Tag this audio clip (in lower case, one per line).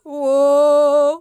female singing
human voice
singing